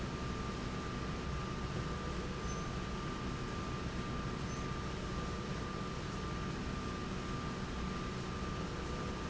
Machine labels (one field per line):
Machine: slide rail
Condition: normal